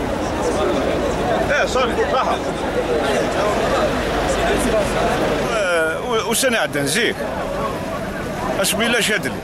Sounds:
Speech

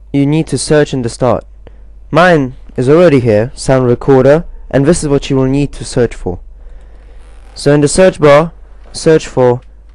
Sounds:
Speech

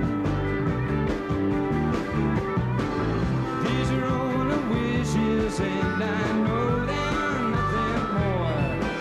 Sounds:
Music, Country

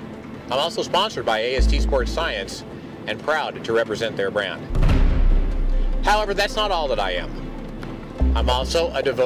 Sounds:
Speech, Music

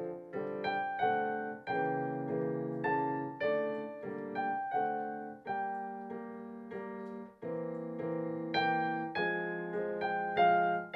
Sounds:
Piano, Keyboard (musical), Musical instrument, Music

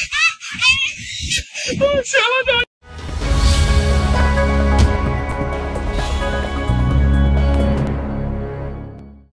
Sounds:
Music, Speech

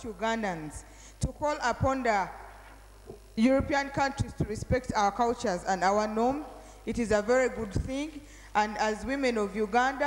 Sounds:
Narration, Female speech, Speech

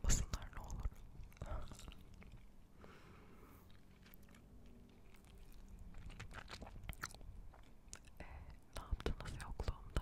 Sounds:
Speech, Whispering, people whispering, Chewing

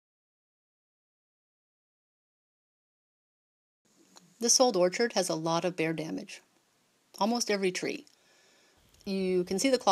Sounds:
Speech

